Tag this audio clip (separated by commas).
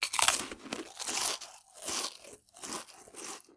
Chewing